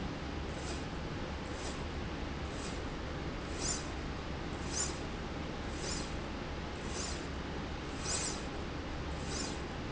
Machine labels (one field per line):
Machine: slide rail